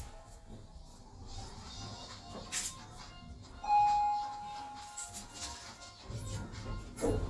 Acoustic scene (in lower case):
elevator